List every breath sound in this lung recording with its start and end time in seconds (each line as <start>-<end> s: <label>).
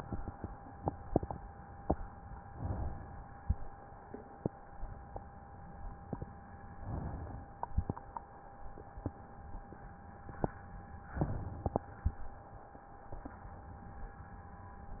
2.45-3.37 s: inhalation
3.38-4.30 s: exhalation
6.71-7.63 s: inhalation
11.06-11.98 s: inhalation